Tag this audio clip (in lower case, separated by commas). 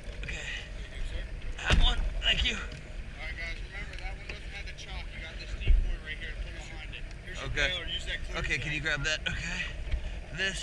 speech